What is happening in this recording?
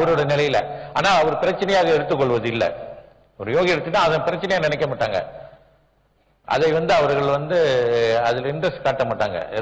Person chatting with poor audio record